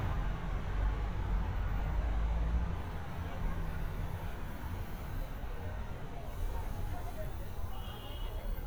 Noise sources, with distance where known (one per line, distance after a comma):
engine of unclear size
car horn